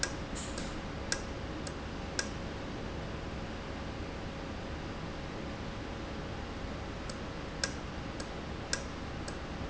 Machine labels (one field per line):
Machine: valve